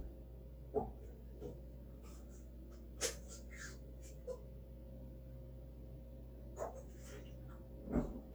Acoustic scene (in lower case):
kitchen